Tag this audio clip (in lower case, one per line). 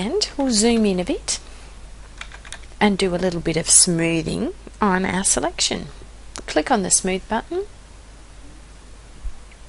speech